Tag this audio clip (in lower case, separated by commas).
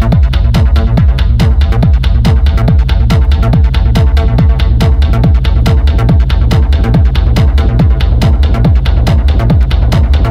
music